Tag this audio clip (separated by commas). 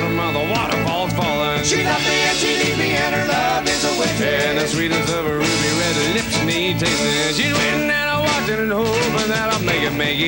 Music